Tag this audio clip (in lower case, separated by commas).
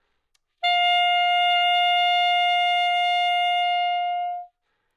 music, musical instrument, woodwind instrument